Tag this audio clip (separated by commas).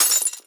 Glass, Shatter